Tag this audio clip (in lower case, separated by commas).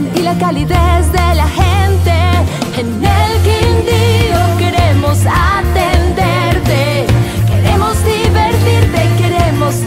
music